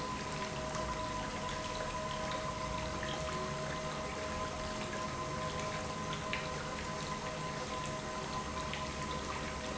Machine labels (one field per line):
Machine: pump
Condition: normal